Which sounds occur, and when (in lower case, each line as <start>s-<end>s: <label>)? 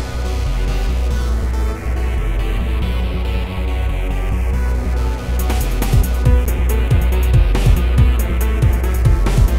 0.0s-9.5s: music